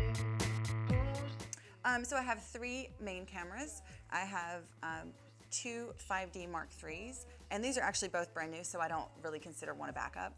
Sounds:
Speech, Music

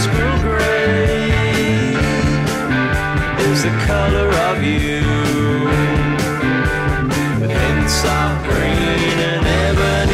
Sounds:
Music

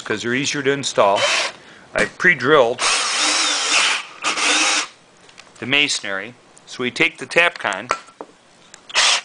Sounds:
Drill, Power tool, Tools

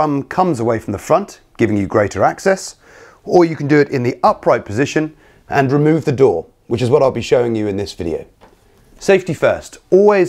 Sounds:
Speech

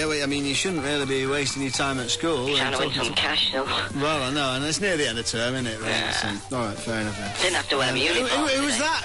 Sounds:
Speech, Music

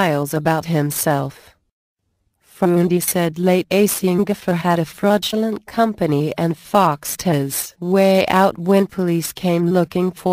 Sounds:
Speech

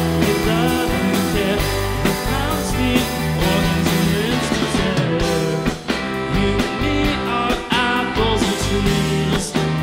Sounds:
Music

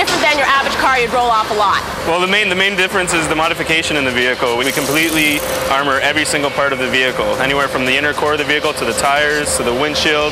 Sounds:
Music, Speech

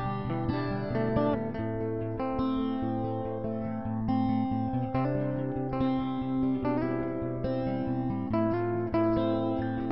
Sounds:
Music

